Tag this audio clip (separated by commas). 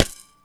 Wood